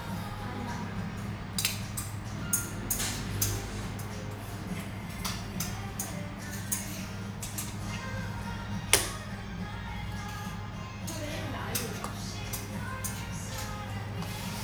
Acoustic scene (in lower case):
restaurant